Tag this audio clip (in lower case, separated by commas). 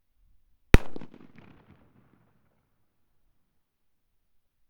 explosion, fireworks